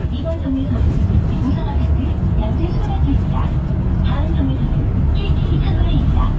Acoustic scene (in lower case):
bus